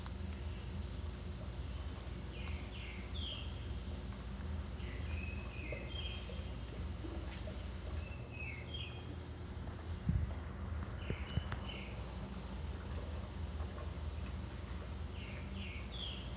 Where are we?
in a park